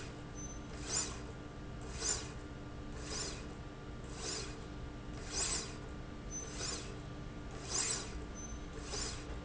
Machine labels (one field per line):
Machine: slide rail